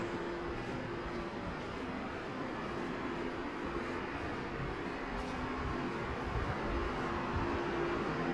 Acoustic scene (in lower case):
subway station